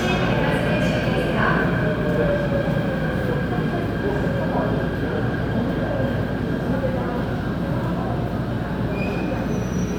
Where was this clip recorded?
in a subway station